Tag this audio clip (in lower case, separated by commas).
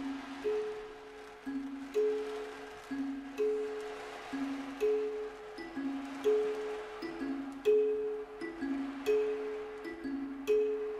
music, percussion